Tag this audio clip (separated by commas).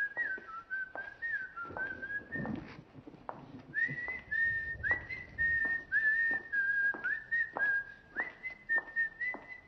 people whistling